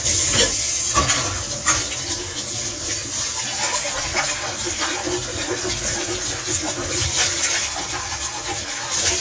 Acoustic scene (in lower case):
kitchen